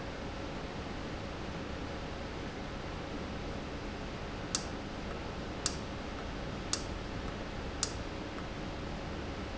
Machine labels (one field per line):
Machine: valve